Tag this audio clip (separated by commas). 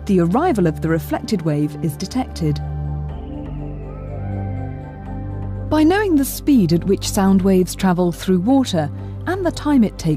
Speech, Music